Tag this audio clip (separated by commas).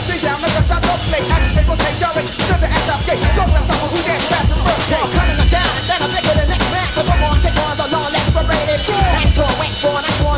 Music